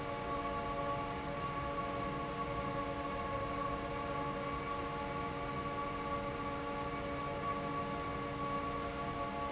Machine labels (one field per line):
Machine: fan